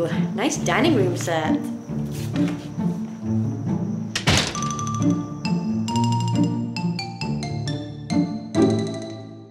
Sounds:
Speech, Music

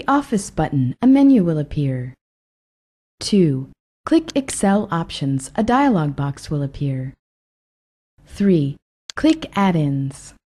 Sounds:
Speech

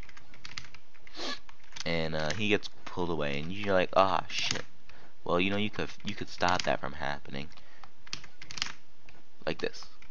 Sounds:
Speech, Computer keyboard

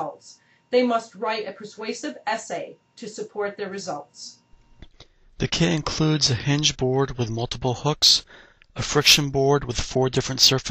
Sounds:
Speech

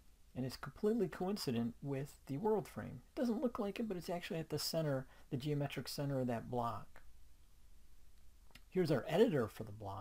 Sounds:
Speech

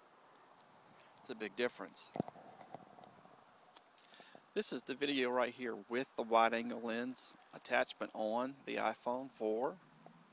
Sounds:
Speech

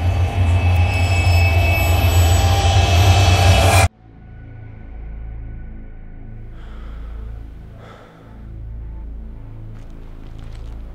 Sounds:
Music

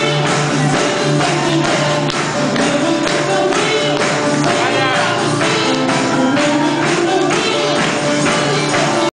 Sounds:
Music, Dance music

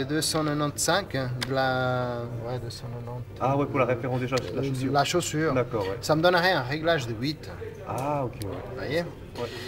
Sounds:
Speech

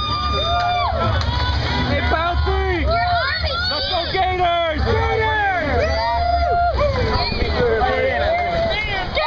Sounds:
Speech, Music, speech babble

